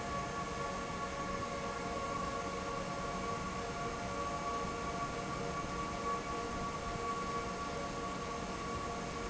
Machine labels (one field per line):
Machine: fan